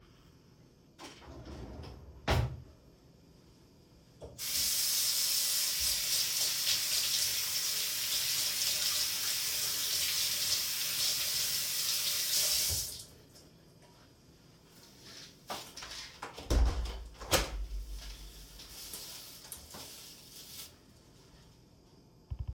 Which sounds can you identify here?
wardrobe or drawer, running water, window